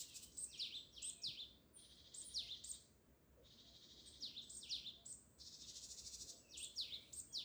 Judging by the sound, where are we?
in a park